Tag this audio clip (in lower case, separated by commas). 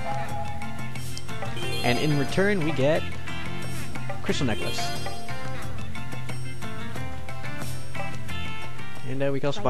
music, speech